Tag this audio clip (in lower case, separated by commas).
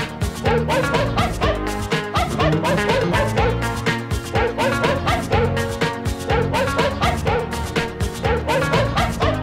pets, dog, bow-wow, music, animal